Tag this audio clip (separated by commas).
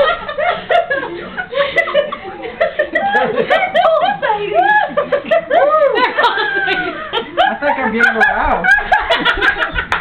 Speech